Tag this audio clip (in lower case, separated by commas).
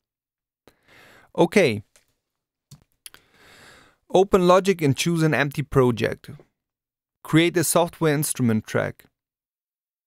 speech